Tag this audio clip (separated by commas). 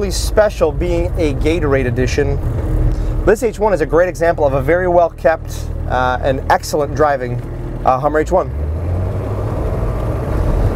Vehicle, Speech